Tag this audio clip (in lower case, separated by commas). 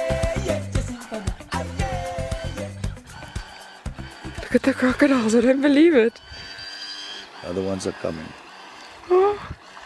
music, motorboat, speech